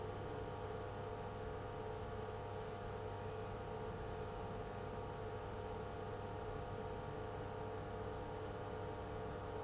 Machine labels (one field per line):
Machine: pump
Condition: abnormal